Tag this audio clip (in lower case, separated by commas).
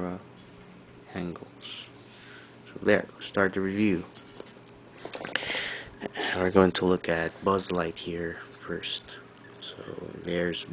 speech